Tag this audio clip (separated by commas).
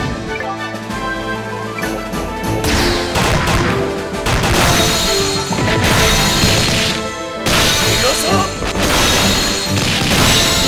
Music